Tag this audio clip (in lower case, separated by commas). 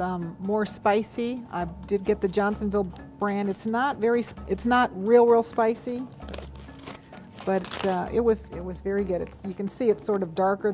music, speech